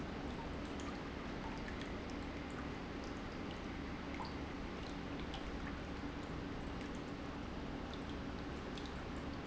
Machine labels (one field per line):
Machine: pump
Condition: normal